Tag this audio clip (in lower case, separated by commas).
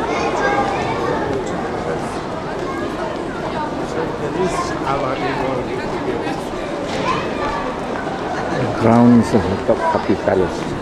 speech